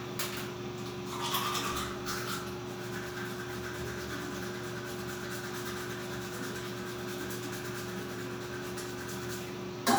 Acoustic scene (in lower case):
restroom